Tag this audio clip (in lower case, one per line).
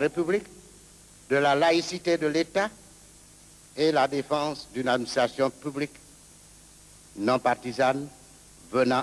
speech